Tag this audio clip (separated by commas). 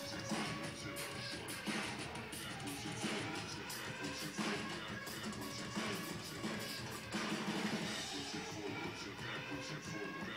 Music